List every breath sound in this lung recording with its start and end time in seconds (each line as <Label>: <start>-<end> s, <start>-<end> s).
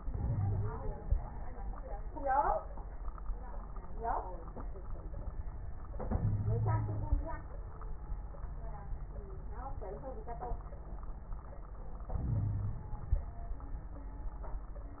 Inhalation: 0.07-0.97 s, 6.08-7.25 s, 12.14-13.18 s
Wheeze: 0.21-0.70 s, 6.20-7.20 s, 12.27-12.84 s